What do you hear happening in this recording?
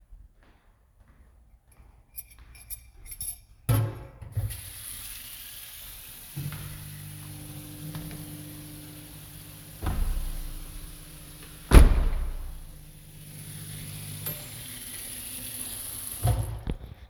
i walked to the kitchen, put dishes in the sink to wash and turned on the tap. then i turned on the microwave and closed the windows before turning off the microwave and closing the tap.